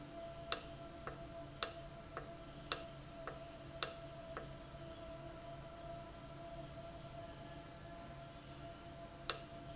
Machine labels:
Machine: valve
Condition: normal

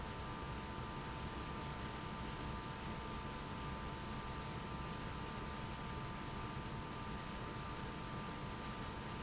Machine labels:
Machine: pump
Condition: abnormal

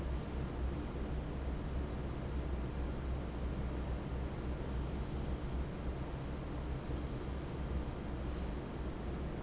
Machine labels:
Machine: fan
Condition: normal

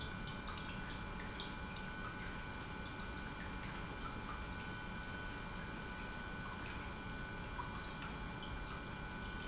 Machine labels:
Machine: pump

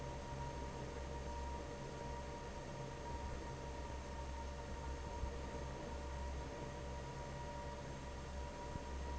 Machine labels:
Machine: fan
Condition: normal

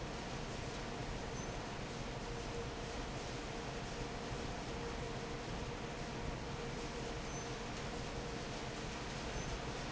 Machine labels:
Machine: fan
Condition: normal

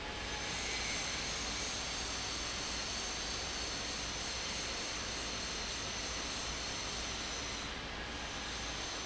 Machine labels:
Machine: fan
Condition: abnormal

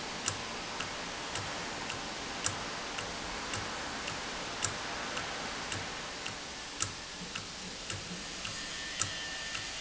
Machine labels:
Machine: valve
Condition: normal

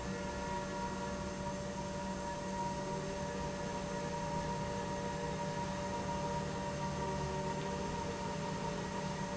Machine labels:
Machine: pump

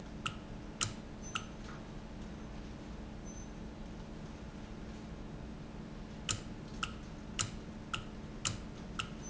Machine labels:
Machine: valve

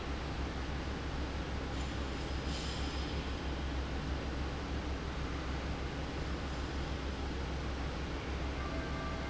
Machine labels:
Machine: fan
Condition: abnormal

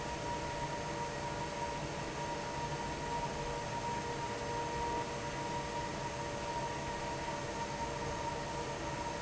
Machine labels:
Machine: fan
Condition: normal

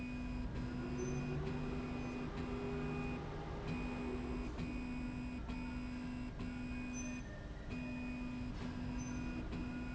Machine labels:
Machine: slide rail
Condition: normal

